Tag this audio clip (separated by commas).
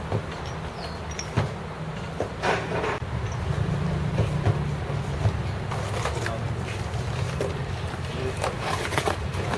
Speech